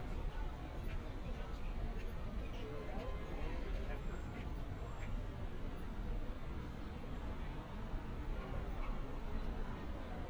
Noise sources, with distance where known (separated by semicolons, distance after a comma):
car horn, far; person or small group talking